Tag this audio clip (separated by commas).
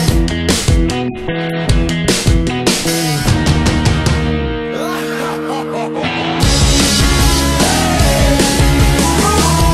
Music, Soundtrack music